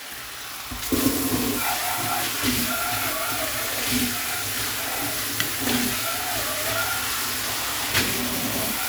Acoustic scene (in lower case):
kitchen